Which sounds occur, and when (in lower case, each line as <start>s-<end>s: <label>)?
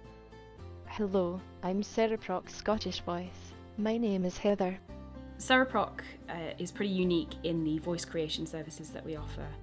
0.0s-9.6s: music
0.8s-1.4s: speech synthesizer
1.6s-3.5s: speech synthesizer
3.7s-4.8s: speech synthesizer
5.4s-6.1s: woman speaking
6.2s-9.5s: woman speaking